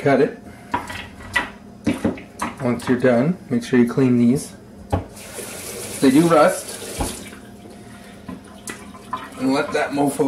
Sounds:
Sink (filling or washing), Water tap, Water

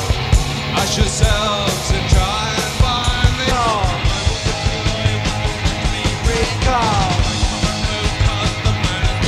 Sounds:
Music

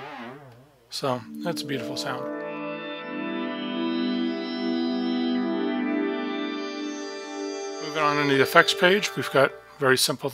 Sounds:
Synthesizer, inside a small room, Speech, Musical instrument, Music

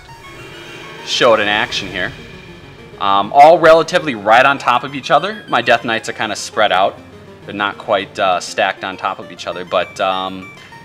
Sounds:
Speech

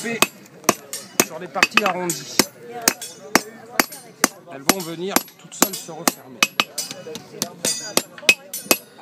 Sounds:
Speech, thwack

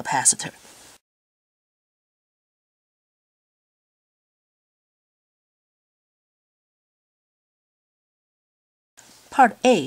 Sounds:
Speech

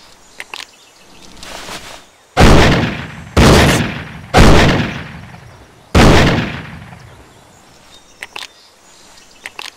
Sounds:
outside, rural or natural

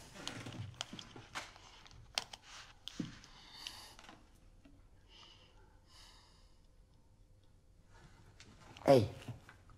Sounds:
inside a small room, Speech

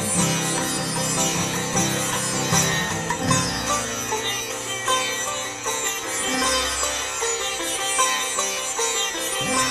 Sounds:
playing sitar

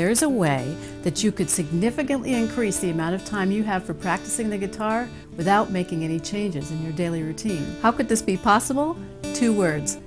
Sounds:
Speech, Music, Guitar, Strum, Plucked string instrument, Musical instrument, Acoustic guitar

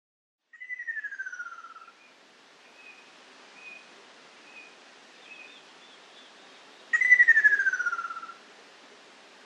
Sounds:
Bird

